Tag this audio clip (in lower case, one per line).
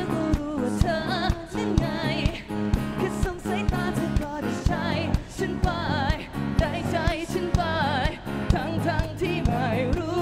independent music
music